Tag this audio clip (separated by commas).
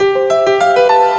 Musical instrument, Keyboard (musical), Piano, Music